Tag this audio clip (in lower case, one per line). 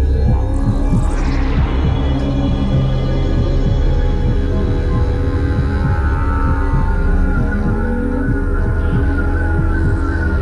didgeridoo
music